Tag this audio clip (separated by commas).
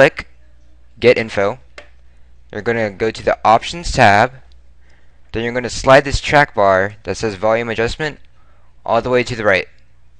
Speech